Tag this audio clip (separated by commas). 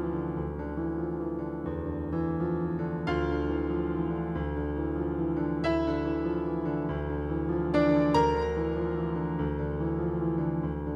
Lullaby, Music